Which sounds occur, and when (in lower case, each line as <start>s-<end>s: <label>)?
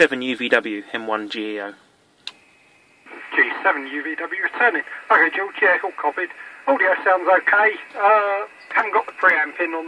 0.0s-9.8s: mechanisms
0.0s-1.8s: man speaking
2.2s-2.3s: tick
3.1s-6.3s: man speaking
6.6s-8.5s: man speaking
8.7s-9.8s: man speaking